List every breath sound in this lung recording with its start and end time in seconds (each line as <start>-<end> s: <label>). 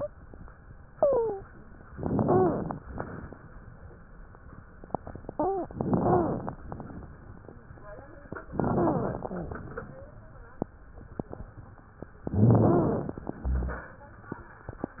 0.96-1.41 s: wheeze
1.93-2.75 s: crackles
1.95-2.75 s: inhalation
2.27-2.59 s: wheeze
5.32-5.72 s: wheeze
5.72-6.54 s: inhalation
5.72-6.54 s: crackles
5.98-6.38 s: wheeze
8.55-9.54 s: inhalation
8.55-9.54 s: crackles
8.79-9.03 s: wheeze
9.21-9.52 s: wheeze
12.28-13.07 s: wheeze
12.28-13.33 s: inhalation
12.28-13.33 s: crackles
13.35-14.01 s: exhalation
13.35-14.01 s: rhonchi